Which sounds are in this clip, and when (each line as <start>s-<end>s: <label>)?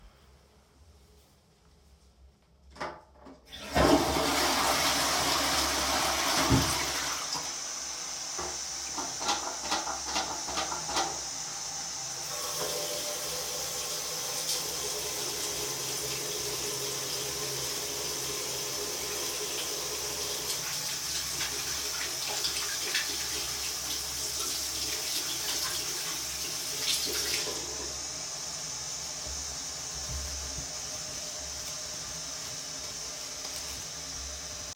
3.0s-8.0s: toilet flushing